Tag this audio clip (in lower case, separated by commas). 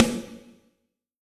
music, snare drum, musical instrument, percussion, drum